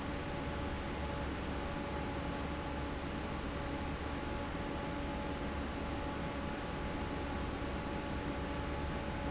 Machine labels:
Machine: fan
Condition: normal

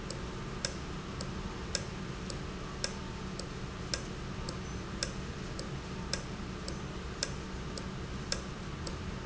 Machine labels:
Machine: valve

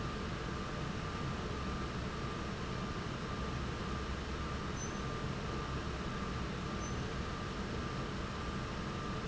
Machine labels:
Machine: fan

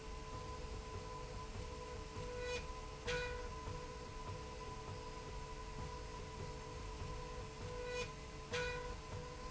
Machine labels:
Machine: slide rail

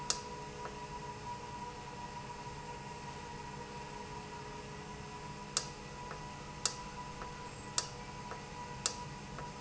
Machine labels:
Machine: valve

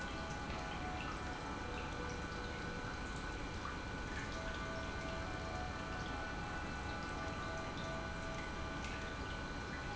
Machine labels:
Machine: pump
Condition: normal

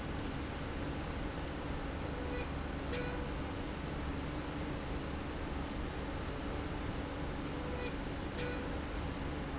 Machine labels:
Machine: slide rail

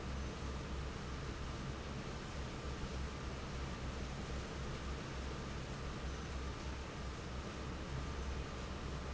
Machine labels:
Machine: fan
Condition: normal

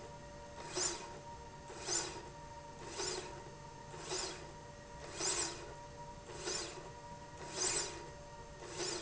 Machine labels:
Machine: slide rail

